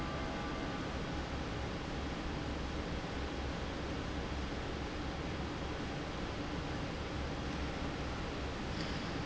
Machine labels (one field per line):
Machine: fan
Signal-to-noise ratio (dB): -6 dB